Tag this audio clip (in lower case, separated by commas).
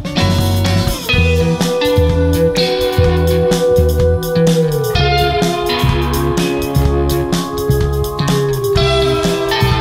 electric guitar